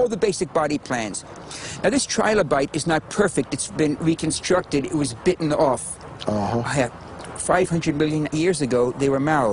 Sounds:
Speech

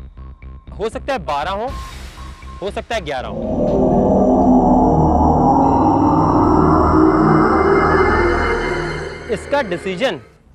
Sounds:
Speech, Music

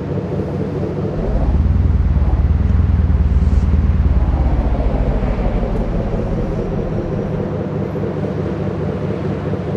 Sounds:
Truck

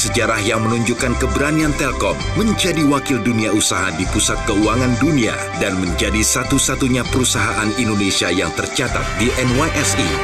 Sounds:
Music, Speech

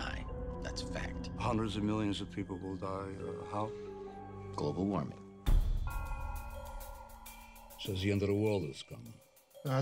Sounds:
Music, Speech

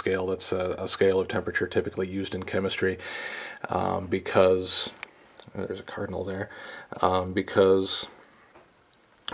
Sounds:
Speech

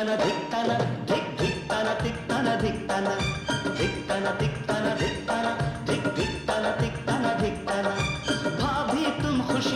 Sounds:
Singing, Music, Music of Bollywood

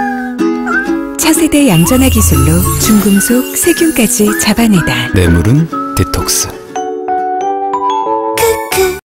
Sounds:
Speech, Music

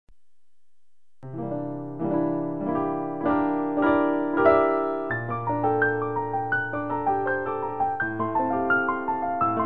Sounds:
Piano, Musical instrument, Music, Keyboard (musical), Electric piano

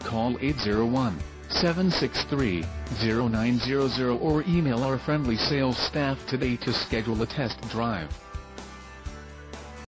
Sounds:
Speech, Music

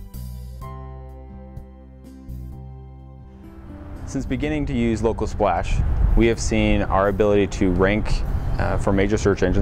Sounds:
Speech, Music

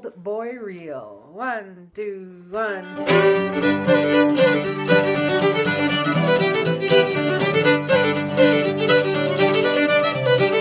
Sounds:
Music, Musical instrument, fiddle, Speech

